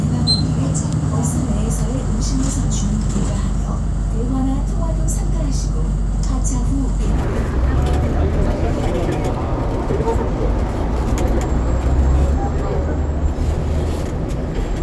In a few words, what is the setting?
bus